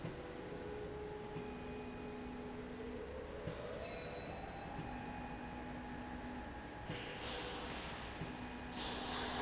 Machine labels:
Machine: slide rail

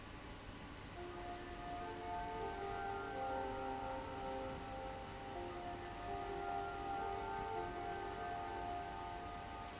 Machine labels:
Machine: fan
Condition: abnormal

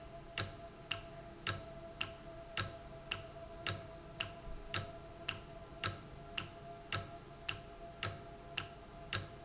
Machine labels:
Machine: valve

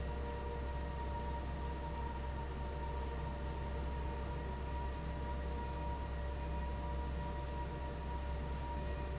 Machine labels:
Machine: fan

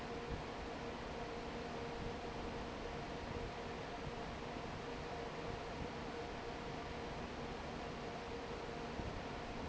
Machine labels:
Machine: fan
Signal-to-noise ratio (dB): 6 dB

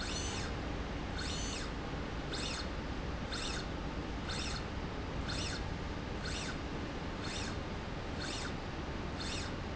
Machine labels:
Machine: slide rail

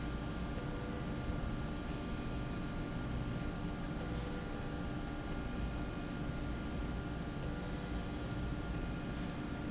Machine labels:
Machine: slide rail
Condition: normal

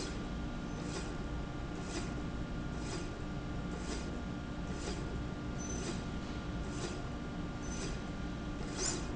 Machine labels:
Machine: slide rail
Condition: normal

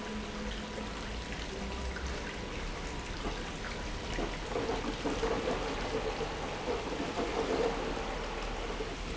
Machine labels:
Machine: pump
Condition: abnormal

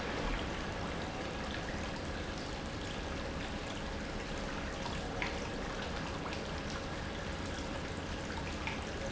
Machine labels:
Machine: pump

